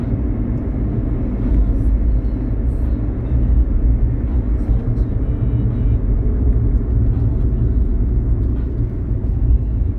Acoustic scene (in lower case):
car